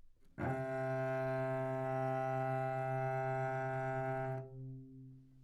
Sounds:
music, bowed string instrument, musical instrument

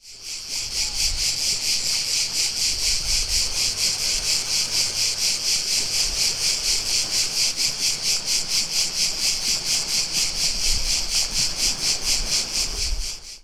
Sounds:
surf, ocean, water

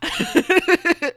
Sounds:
laughter, human voice

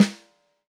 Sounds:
musical instrument, percussion, music, snare drum, drum

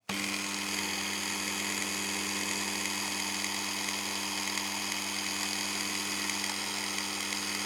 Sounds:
power tool, tools

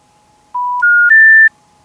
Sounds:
alarm, telephone

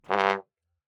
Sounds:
musical instrument, brass instrument, music

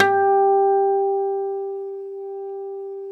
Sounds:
acoustic guitar, plucked string instrument, music, musical instrument, guitar

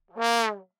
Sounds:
musical instrument, music, brass instrument

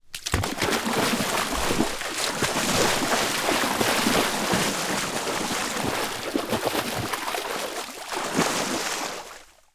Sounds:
liquid, ocean, surf, water, splatter

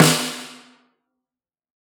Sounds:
percussion, snare drum, music, drum, musical instrument

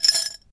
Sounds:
musical instrument, rattle (instrument), percussion, domestic sounds, rattle, glass, music, keys jangling

